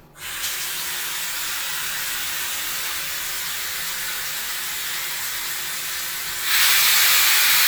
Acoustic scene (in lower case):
restroom